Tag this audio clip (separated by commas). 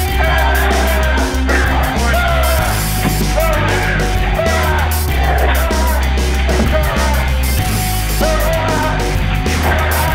Music